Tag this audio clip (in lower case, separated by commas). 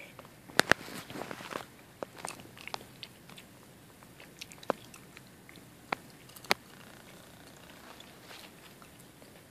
chewing